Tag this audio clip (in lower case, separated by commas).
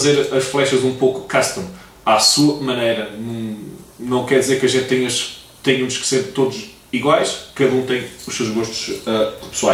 speech